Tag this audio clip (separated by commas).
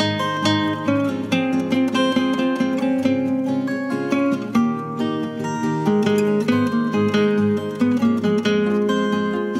Acoustic guitar